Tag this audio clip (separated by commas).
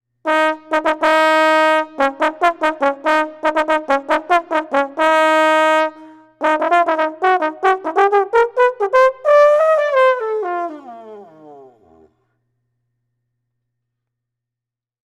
Brass instrument, Music, Musical instrument